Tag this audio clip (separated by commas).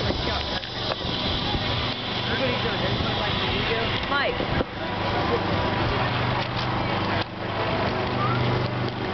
Speech